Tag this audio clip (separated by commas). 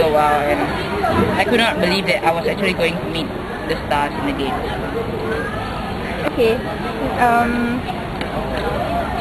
Speech